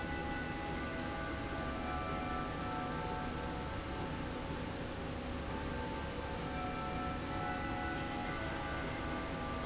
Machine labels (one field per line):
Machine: slide rail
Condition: normal